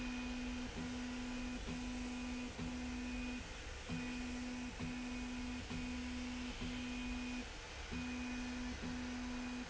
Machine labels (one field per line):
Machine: slide rail